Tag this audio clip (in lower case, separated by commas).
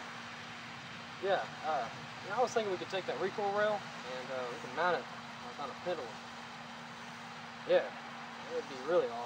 speech